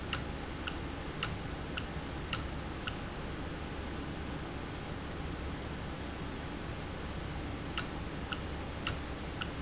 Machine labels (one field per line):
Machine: valve